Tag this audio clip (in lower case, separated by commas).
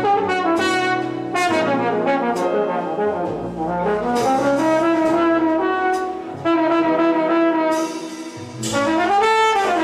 playing trombone